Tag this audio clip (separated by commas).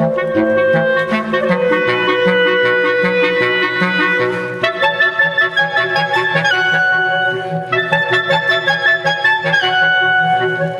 Clarinet